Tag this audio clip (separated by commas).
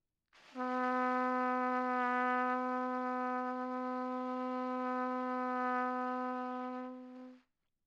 Trumpet, Brass instrument, Music, Musical instrument